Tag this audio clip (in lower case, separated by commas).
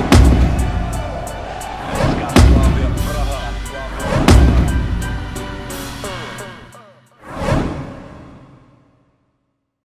music, speech